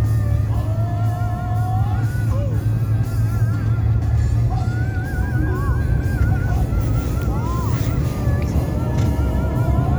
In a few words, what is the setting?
car